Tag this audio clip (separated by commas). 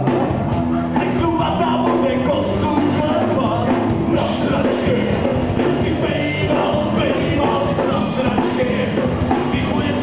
Music, inside a large room or hall, Singing